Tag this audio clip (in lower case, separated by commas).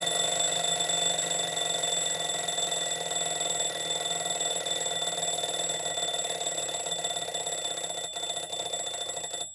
alarm, bell